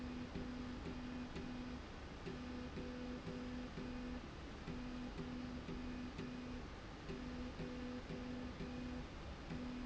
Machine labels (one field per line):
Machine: slide rail